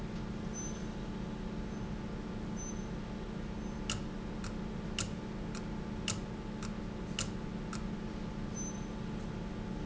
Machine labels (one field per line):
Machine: valve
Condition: abnormal